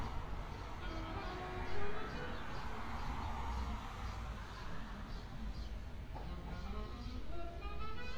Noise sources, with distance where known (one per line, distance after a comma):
music from an unclear source